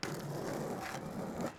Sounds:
Skateboard, Vehicle

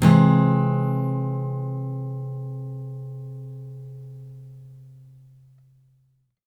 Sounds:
Strum, Plucked string instrument, Guitar, Acoustic guitar, Music, Musical instrument

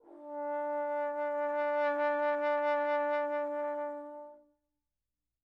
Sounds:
Music, Musical instrument, Brass instrument

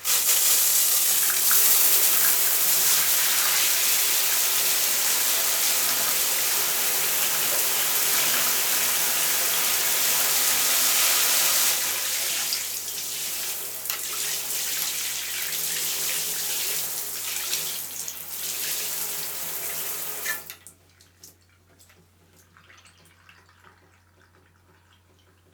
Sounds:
Bathtub (filling or washing), home sounds

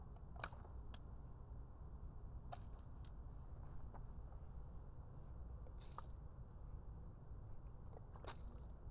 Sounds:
Splash, Liquid

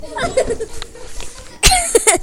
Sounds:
Cough, Respiratory sounds

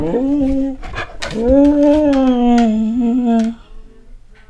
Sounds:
Dog, Animal, Domestic animals

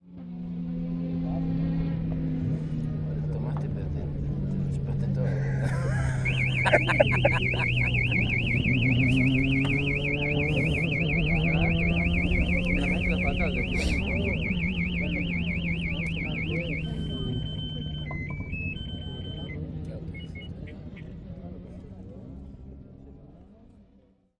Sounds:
Vehicle, Car, auto racing, Motor vehicle (road), Alarm

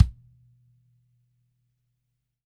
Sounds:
Music, Drum, Musical instrument, Bass drum, Percussion

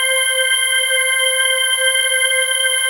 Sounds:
Musical instrument, Keyboard (musical), Organ, Music

